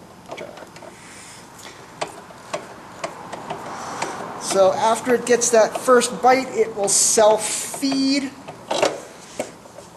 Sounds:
speech
tools

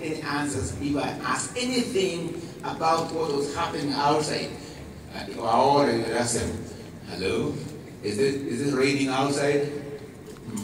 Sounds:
speech
man speaking

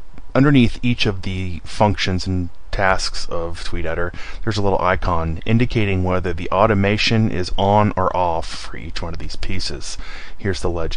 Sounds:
speech

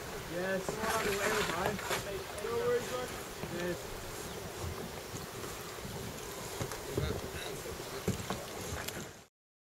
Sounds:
water vehicle
vehicle
speech

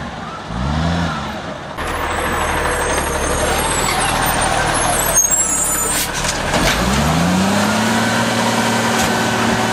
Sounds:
vehicle
truck

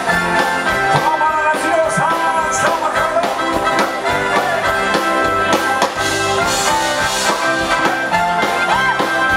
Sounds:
country
bluegrass
music

